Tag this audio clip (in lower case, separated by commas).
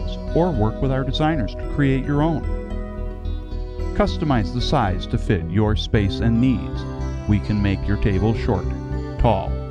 music, speech